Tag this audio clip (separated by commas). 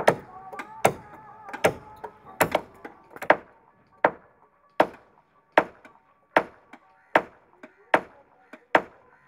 hammering nails